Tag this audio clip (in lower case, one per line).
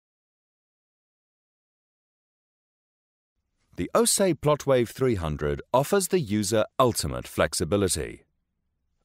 speech